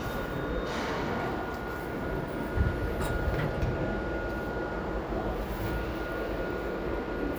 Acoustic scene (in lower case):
elevator